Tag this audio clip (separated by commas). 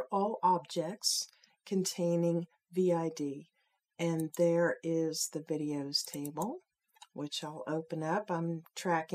Speech